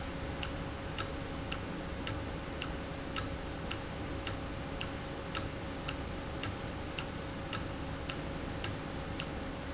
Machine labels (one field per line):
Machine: valve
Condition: normal